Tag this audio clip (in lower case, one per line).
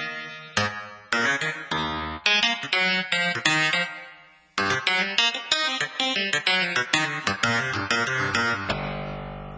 music